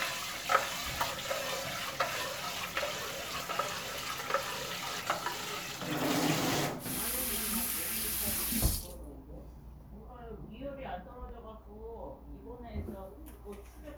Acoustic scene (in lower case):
kitchen